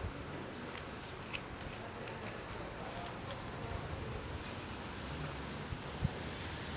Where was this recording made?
in a residential area